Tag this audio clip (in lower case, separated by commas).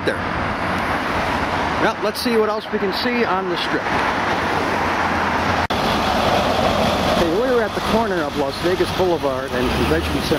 speech